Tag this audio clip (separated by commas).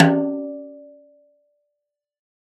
Percussion, Snare drum, Musical instrument, Music, Drum